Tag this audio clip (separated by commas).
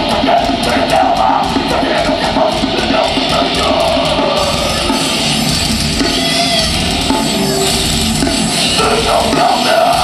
Music